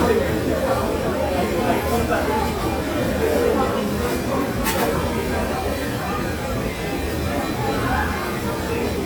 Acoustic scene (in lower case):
restaurant